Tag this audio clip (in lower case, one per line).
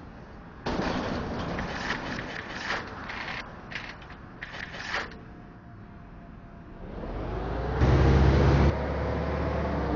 pulleys
pawl
mechanisms